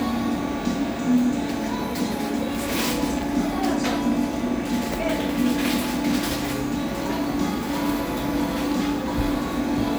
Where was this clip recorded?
in a cafe